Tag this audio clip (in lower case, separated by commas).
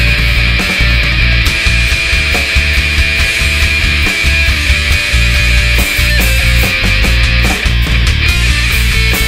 music, rock and roll, progressive rock, heavy metal, punk rock